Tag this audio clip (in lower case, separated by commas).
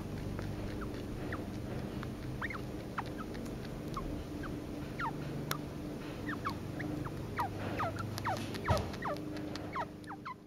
chinchilla barking